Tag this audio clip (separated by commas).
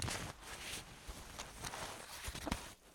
Crumpling